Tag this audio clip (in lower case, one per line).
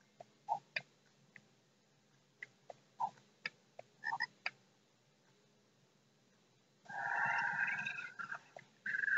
clicking